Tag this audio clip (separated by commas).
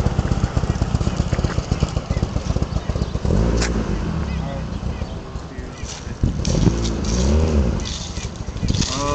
Speech